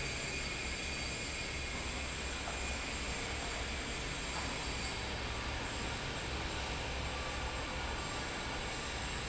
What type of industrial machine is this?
fan